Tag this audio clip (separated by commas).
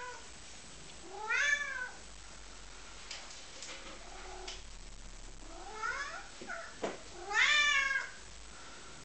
Meow, Cat, Animal, cat meowing, Domestic animals